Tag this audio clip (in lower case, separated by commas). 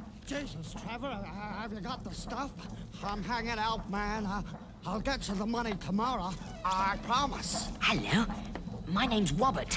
speech